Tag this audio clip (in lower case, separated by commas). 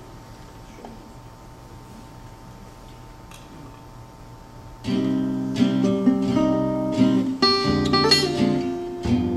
bowed string instrument, music